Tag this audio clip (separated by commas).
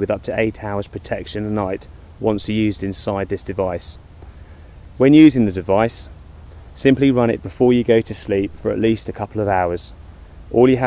Speech